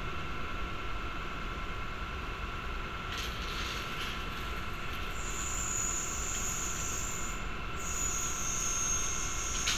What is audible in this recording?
unidentified powered saw